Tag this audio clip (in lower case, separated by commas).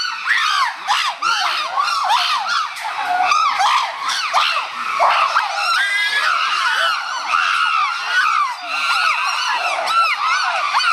chimpanzee pant-hooting